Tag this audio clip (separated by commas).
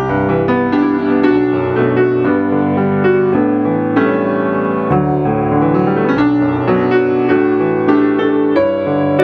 Music